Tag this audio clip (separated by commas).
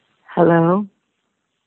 Human voice